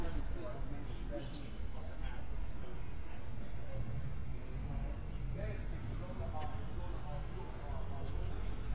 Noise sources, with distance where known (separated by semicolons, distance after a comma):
person or small group talking